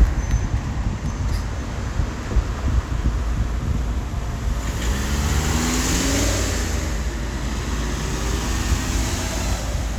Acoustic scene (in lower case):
street